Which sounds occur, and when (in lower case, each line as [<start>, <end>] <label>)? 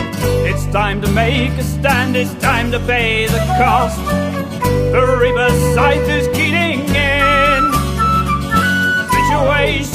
[0.00, 9.94] music
[0.42, 3.94] male singing
[4.95, 7.60] male singing
[9.16, 9.82] male singing